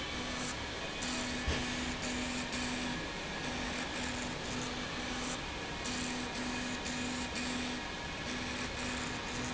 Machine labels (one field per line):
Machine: slide rail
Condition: abnormal